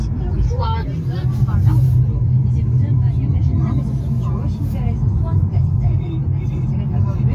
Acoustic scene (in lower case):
car